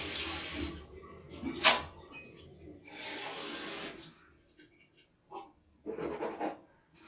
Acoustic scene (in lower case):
restroom